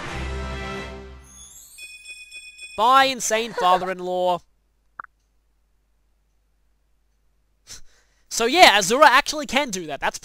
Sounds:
Speech, Music

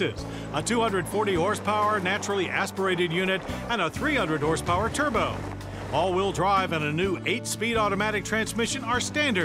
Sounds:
Vehicle, Music, Speech

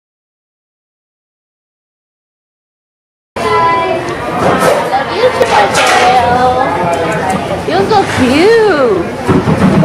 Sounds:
Speech, inside a public space

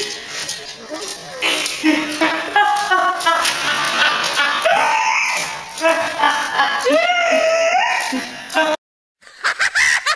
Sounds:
Animal, pets, Cat

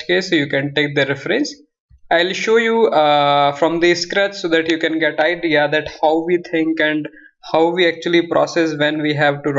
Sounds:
Speech

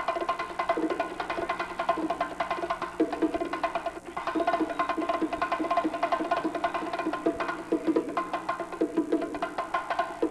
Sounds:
playing bongo

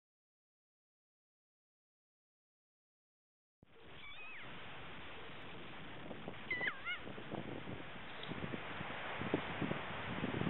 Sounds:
Bird

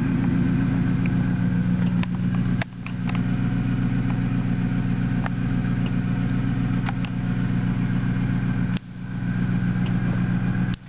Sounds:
Car, Vehicle

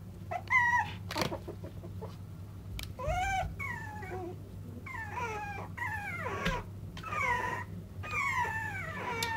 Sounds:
Animal, Dog, pets

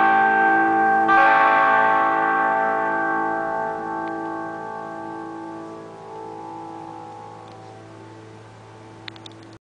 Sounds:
Musical instrument, Electric guitar, Music, Strum, Guitar, Plucked string instrument

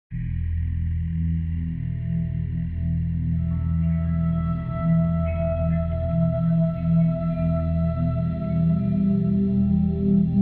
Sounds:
Singing bowl

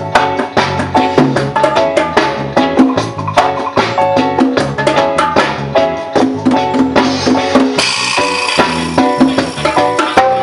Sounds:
Percussion, Wood block, Music

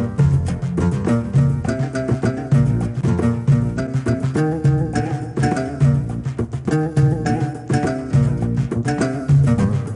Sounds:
Music

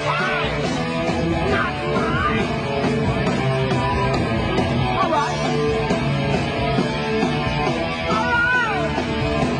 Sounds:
Music, Speech

